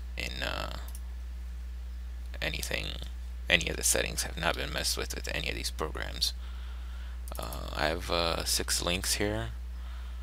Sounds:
speech

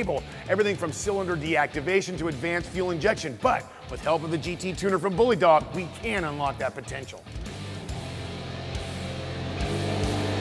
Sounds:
speech, music

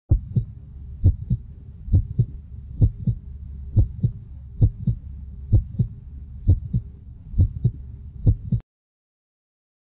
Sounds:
throbbing, heartbeat

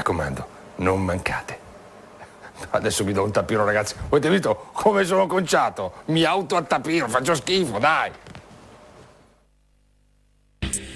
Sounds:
speech

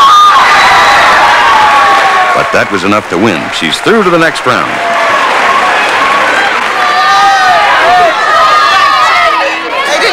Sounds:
speech

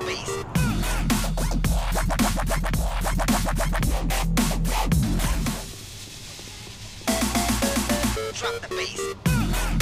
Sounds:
dubstep, music, electronic music, speech

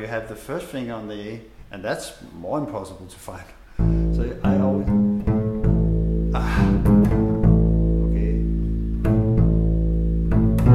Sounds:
playing double bass

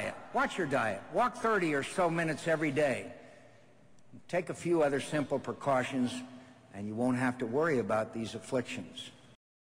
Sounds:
monologue, speech, man speaking

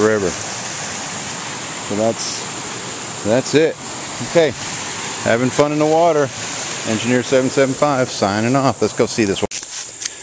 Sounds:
pumping water

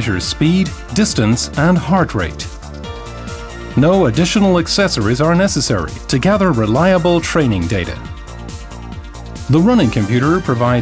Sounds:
speech, music

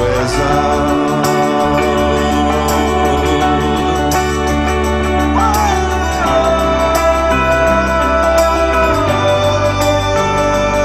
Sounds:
singing, music

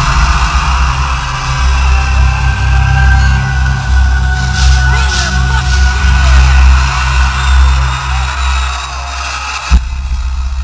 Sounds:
rhythm and blues, theme music, music

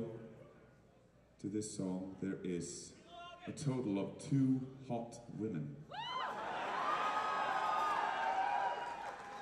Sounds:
speech

